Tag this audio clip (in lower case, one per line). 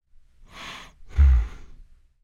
respiratory sounds
breathing